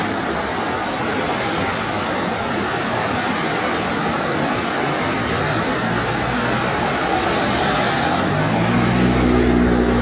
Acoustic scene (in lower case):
street